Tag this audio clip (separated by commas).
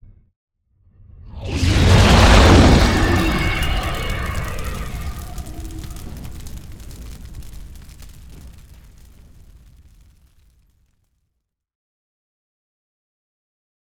Fire